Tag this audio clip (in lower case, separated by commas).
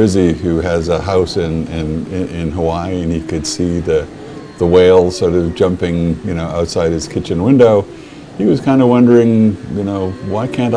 speech